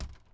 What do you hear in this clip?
wooden window closing